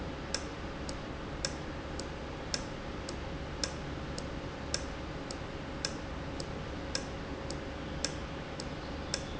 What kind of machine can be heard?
valve